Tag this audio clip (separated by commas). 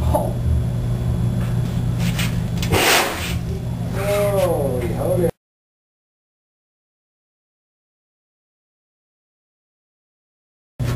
Speech